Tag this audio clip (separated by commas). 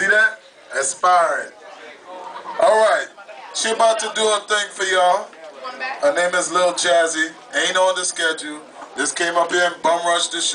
Speech